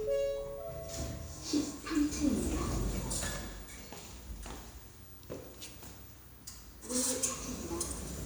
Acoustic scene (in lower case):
elevator